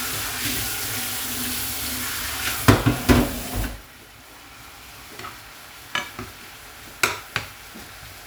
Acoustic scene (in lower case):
kitchen